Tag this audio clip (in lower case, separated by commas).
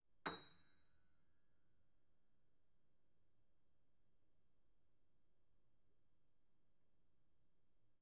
music, piano, keyboard (musical), musical instrument